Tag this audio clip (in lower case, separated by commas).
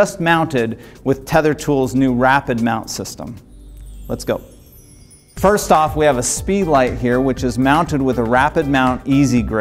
music, speech